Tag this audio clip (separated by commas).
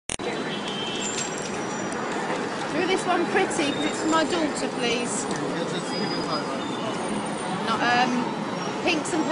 speech babble, Speech